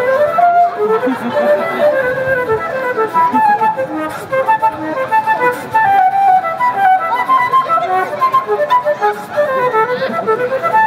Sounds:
speech, music

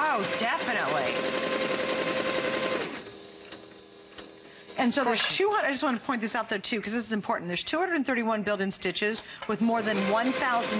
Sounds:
speech, sewing machine

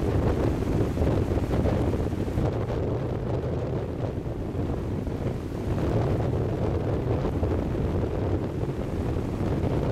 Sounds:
wind noise (microphone), wind noise, wind

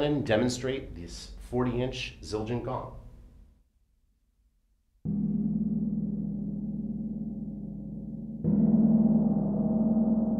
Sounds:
playing gong

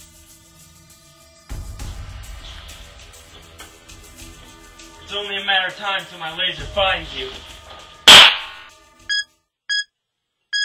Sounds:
music, inside a small room, speech

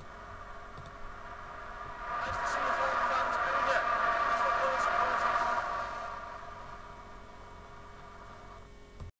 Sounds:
speech

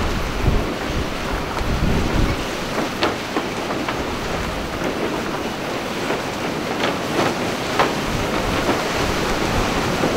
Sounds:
rustling leaves, wind rustling leaves

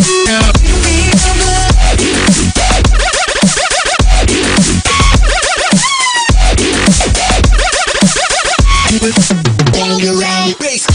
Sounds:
dubstep, music

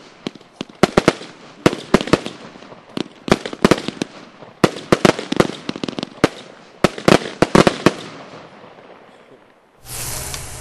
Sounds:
explosion

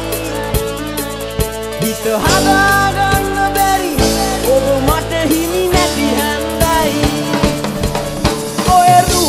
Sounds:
music

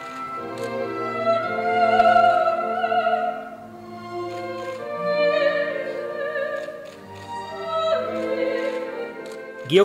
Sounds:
music, opera, classical music, speech

